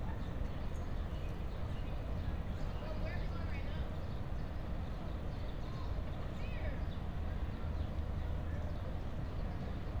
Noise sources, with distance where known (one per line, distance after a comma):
person or small group talking, far